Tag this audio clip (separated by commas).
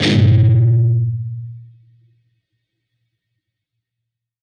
Music, Guitar, Plucked string instrument, Musical instrument